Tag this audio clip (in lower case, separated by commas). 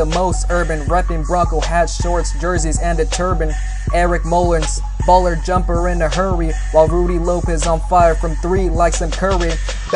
pop music, music, funk